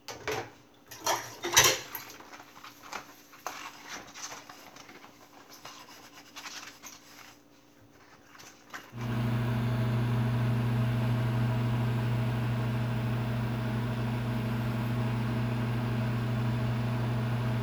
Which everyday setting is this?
kitchen